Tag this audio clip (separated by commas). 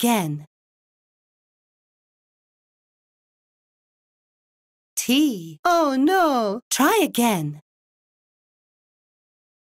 Speech